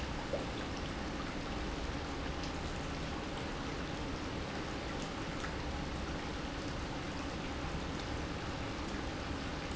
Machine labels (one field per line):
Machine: pump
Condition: normal